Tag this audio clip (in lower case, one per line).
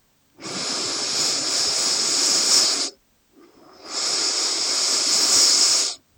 respiratory sounds
breathing